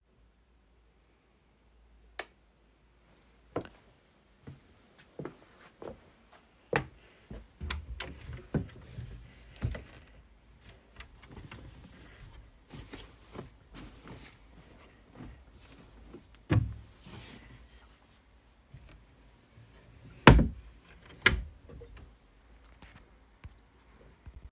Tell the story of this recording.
i turned on the light switch, i walked upto my wardrobe, open the wardrobe, took some clothes, closed the wardrobe